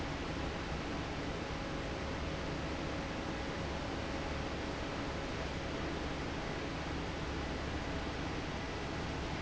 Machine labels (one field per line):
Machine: fan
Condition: normal